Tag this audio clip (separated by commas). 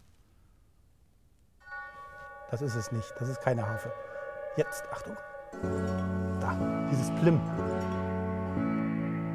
Harp, Speech, Music